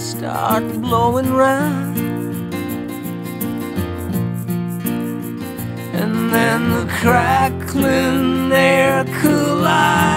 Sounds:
Music

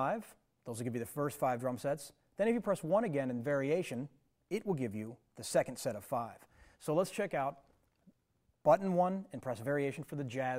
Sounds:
Speech

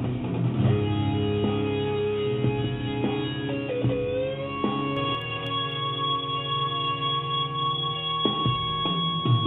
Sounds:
Music

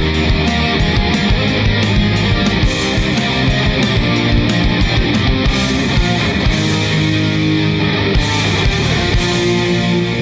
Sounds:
Music, Blues

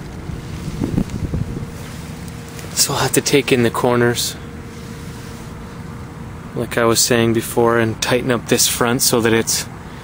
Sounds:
Speech, sailing ship

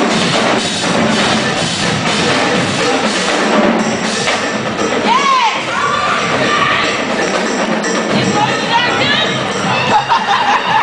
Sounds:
Speech, Music

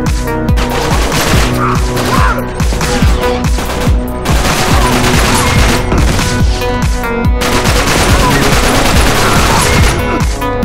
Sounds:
inside a large room or hall, Music

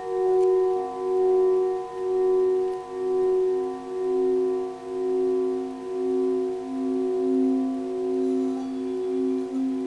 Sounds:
singing bowl

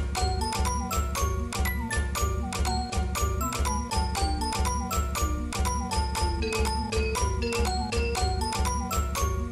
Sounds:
Music

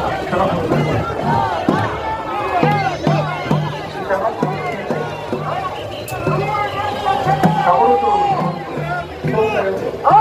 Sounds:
people marching

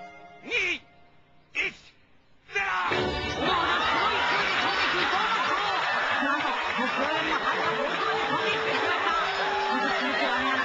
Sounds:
Music, Speech

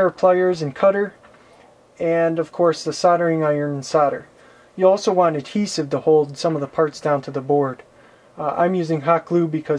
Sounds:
Speech

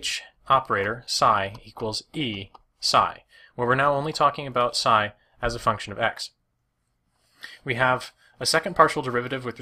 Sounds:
Speech

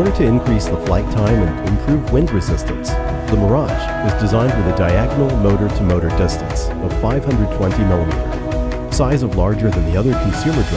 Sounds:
Speech, Music

